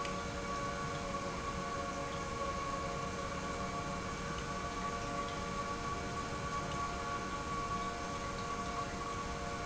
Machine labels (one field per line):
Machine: pump